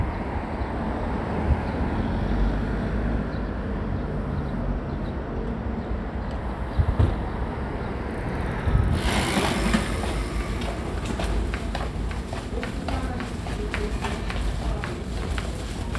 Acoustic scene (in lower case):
residential area